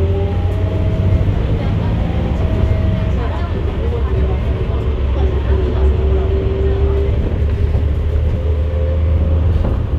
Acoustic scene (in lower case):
bus